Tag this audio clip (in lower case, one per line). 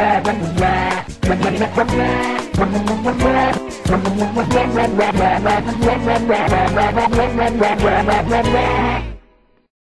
music